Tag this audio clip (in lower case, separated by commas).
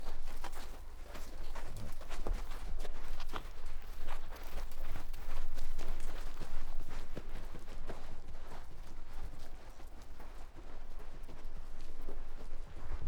run